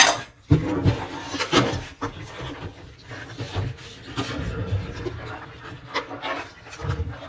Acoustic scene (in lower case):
kitchen